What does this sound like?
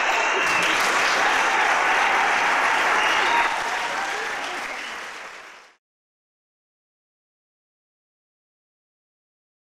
Applause and whistles from a large audience